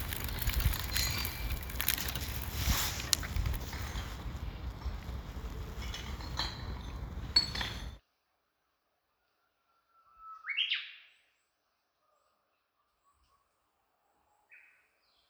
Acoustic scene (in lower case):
park